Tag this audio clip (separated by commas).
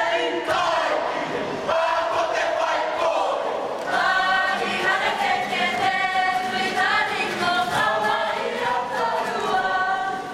inside a public space, Choir, singing choir